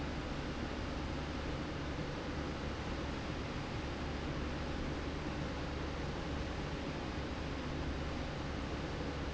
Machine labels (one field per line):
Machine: slide rail